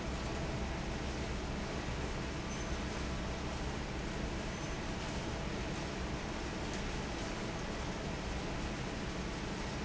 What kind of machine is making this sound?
fan